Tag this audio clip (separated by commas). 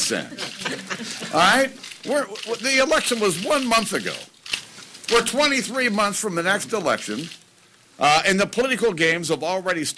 Speech